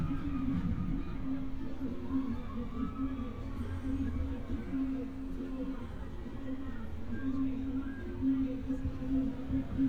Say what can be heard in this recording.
music from an unclear source, unidentified human voice